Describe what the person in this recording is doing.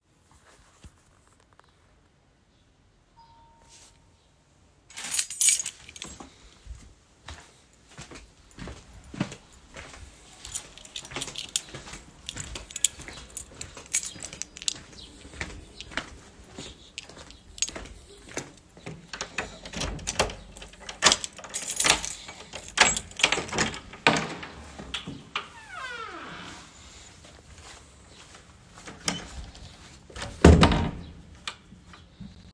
The doorbell rang. I picked up my keys and walked to the door. I inserted the key into the lock and turned it. Finally I opened the door, my brother entered, then I closed the door.